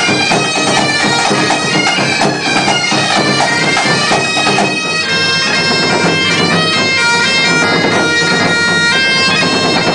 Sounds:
drum, bagpipes

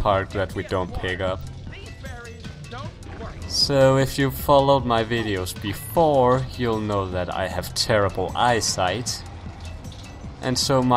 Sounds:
music, speech

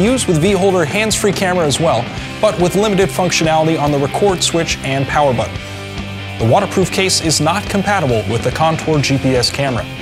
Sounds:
music, speech

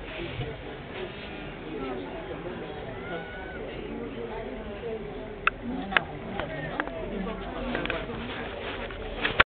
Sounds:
speech

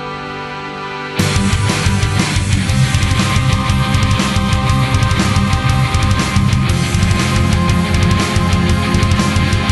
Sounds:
music

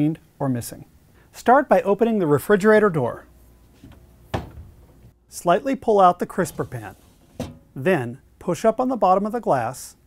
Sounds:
speech

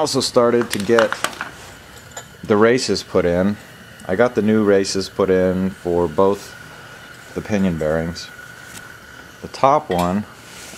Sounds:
speech

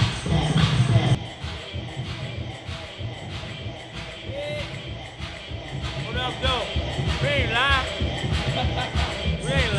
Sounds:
speech, music

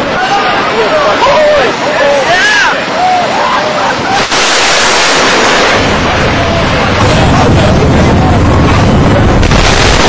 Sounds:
speech

